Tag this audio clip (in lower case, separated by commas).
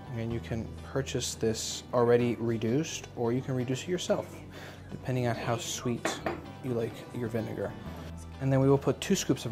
speech, music